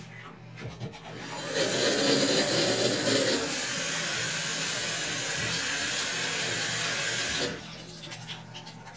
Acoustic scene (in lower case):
restroom